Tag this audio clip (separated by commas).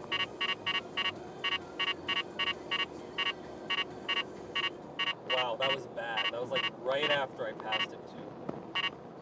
Car, Speech, Vehicle